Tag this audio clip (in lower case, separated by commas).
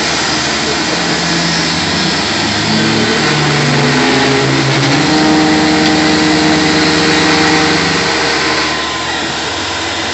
medium engine (mid frequency)